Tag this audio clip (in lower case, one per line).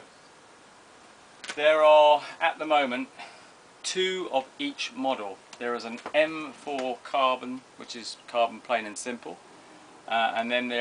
speech